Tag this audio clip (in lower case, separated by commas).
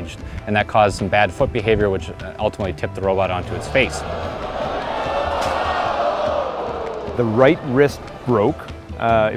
music, speech